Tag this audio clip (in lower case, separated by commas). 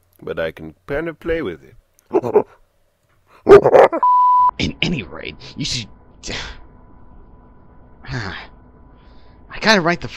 speech